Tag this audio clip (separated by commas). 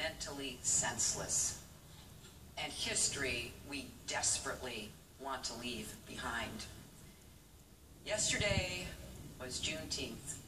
Speech, Narration, woman speaking